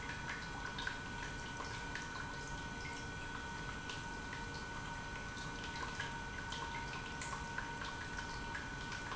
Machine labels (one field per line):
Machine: pump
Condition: normal